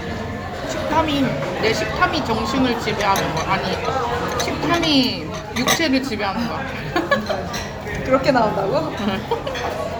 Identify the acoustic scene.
restaurant